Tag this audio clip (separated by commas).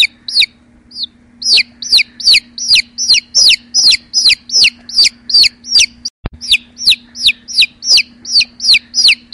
rooster